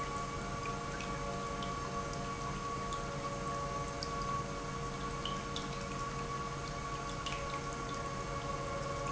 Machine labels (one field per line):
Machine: pump